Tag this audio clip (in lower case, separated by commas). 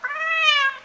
pets, cat, animal